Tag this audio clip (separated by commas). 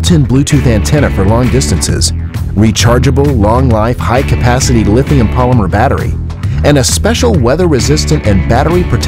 Music, Speech